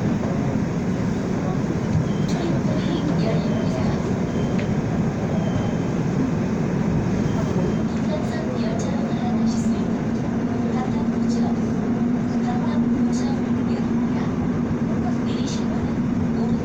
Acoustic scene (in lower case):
subway train